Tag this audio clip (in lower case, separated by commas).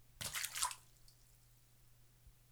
splatter, liquid